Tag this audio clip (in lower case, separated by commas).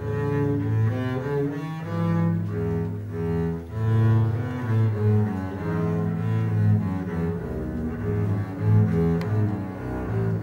double bass, cello, bowed string instrument